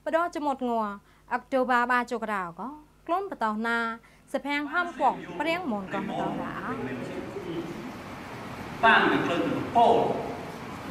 An adult female is speaking and then an adult male speaks